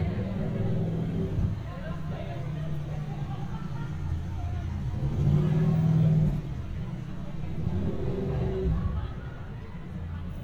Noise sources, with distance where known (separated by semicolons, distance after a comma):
medium-sounding engine, near; person or small group talking